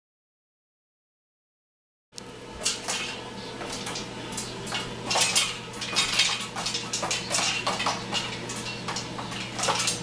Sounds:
dishes, pots and pans, eating with cutlery, Cutlery

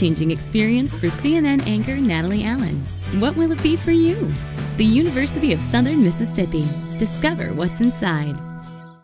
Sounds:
Speech, Music

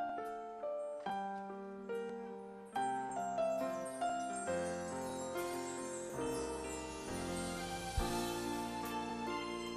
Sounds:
Jingle bell, Music

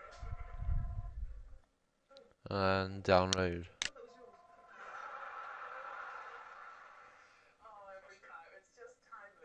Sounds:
Speech

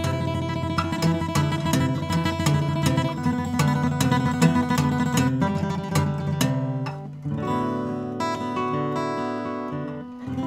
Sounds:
Plucked string instrument, Musical instrument, Acoustic guitar, Music, Guitar

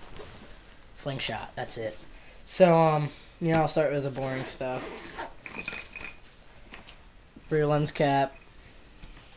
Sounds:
Speech

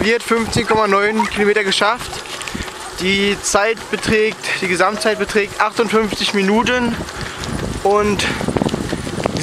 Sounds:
Speech, outside, rural or natural, Run

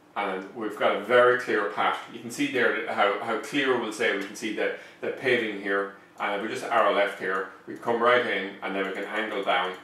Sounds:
Speech

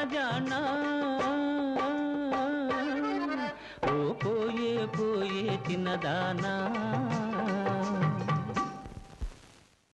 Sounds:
Music

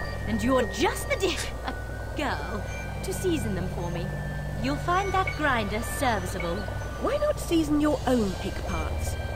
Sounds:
Music, Speech

